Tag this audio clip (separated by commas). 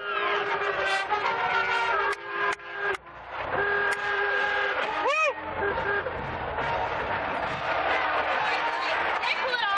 Speech, Music